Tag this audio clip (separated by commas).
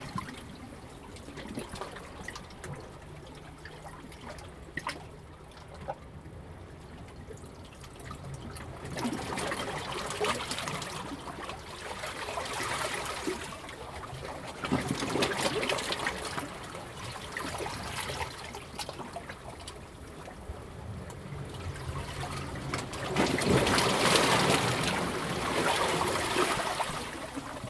Waves, Water, Ocean